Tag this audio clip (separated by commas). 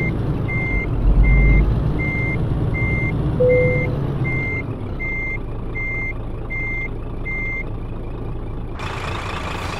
Reversing beeps, Vehicle